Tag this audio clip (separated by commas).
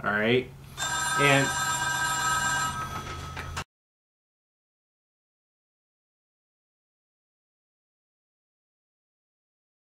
Speech